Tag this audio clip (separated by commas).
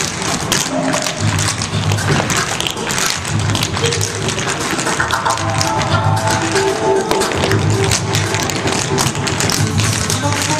Music, Tap